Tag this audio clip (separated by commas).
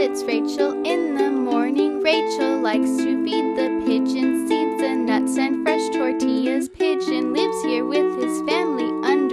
Music